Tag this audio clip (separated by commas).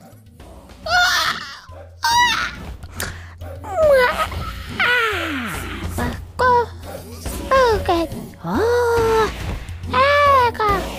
Music, Speech